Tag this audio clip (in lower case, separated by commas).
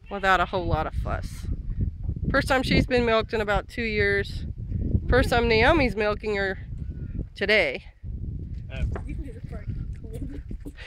bleat, sheep, speech